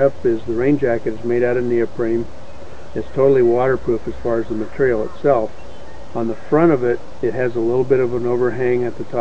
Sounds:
speech

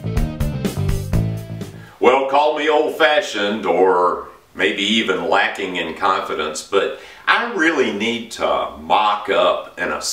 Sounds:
music, speech

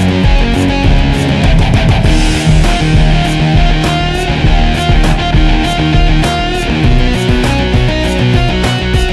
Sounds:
music

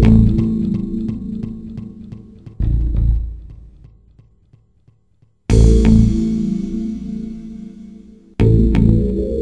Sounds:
music, soundtrack music, video game music

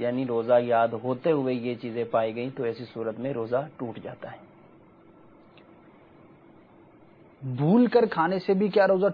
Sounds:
speech

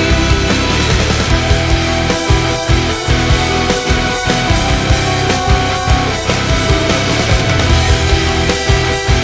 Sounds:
music

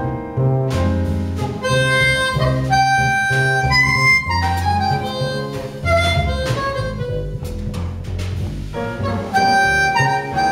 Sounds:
harmonica, woodwind instrument

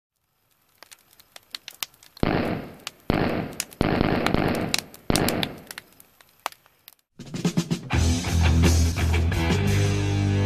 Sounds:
gunfire

